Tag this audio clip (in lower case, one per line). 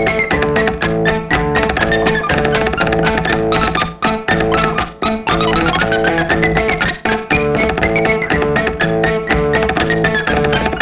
musical instrument
guitar
plucked string instrument
electric guitar
music